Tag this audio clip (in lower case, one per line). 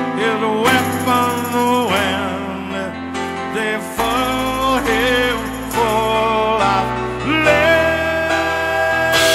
music
singing
rock music